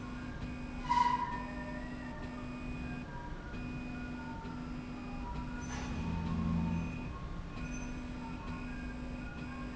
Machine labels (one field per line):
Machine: slide rail